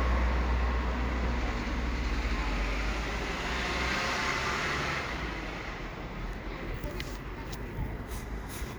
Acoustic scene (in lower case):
residential area